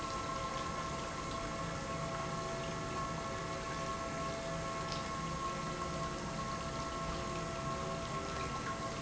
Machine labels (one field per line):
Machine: pump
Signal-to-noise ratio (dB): -6 dB